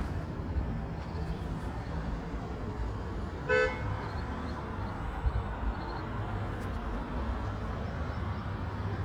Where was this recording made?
in a residential area